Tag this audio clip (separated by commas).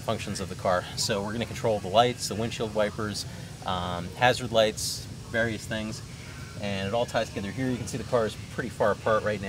Speech